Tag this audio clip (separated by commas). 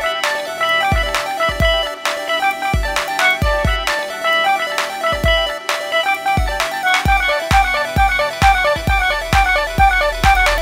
Disco, Video game music, Music, Dance music